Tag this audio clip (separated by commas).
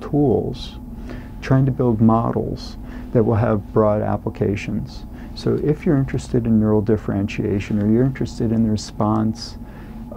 Speech